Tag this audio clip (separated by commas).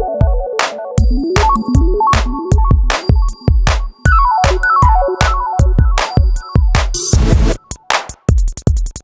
Electronic music, Music, Techno